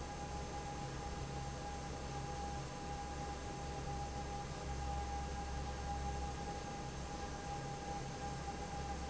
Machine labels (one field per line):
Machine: fan